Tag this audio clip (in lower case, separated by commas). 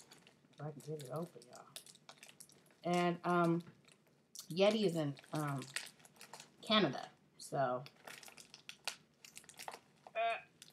speech, crinkling